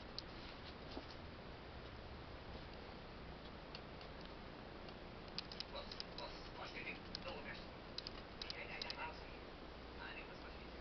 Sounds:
Speech

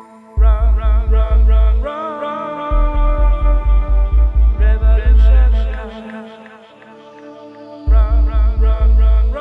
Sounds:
Music

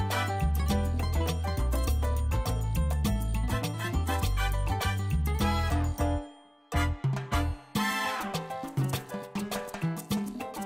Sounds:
Music

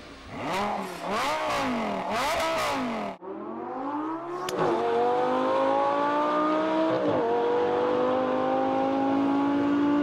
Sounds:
Car passing by

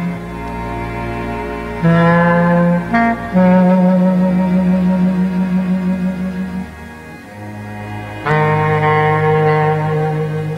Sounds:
Clarinet, Music, woodwind instrument, Musical instrument

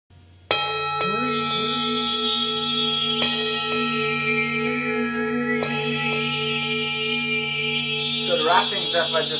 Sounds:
Music, Echo, Speech

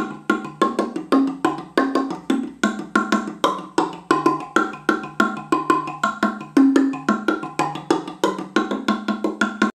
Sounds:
Music, Musical instrument

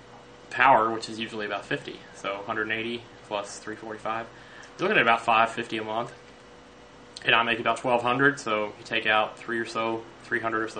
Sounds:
Speech

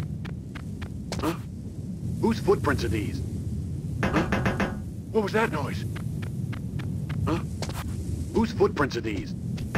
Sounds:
Speech

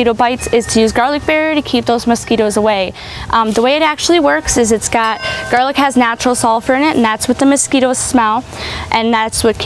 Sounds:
Speech

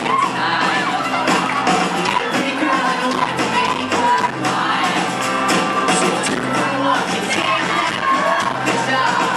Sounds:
Crowd

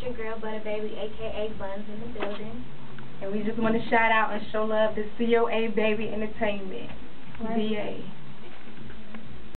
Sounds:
Speech

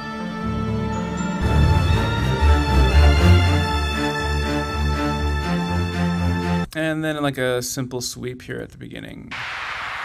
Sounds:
Music, Synthesizer, Speech

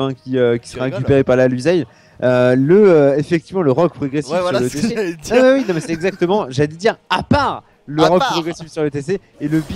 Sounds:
Speech

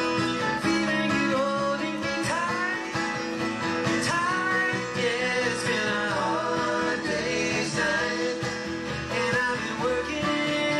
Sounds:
Music, Country, Musical instrument

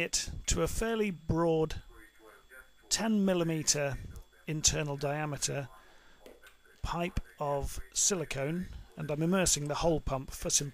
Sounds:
Speech

